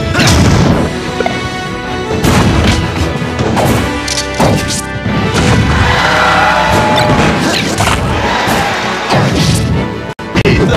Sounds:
music

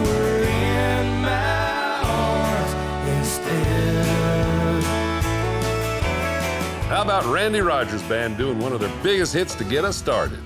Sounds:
speech, music

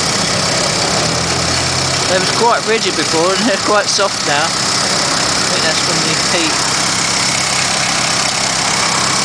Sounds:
speech, vehicle

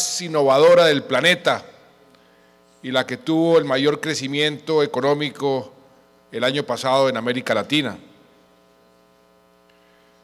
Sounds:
speech, man speaking, narration

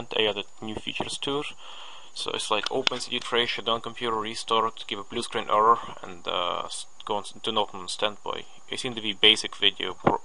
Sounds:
speech

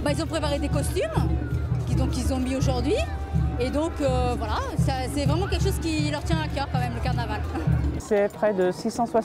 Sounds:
speech, music

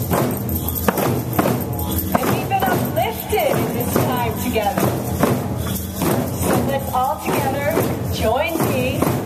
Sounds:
speech, music

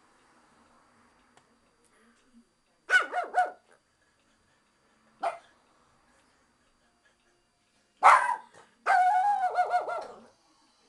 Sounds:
animal, bark, dog barking, dog

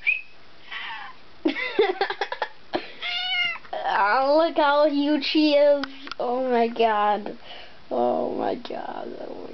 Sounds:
speech, cat, animal, pets, meow

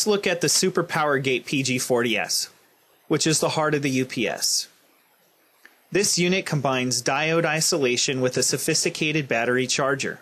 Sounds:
speech

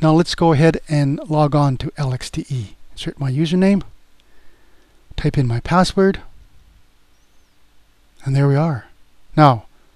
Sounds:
speech

